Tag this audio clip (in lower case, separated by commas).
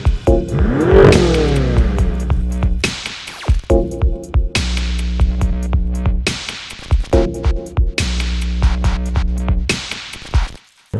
vroom, music, vehicle, car